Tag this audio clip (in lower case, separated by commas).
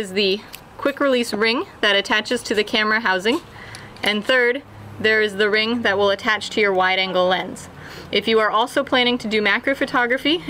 speech